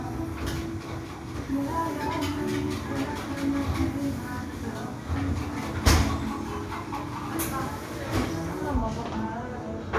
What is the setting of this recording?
cafe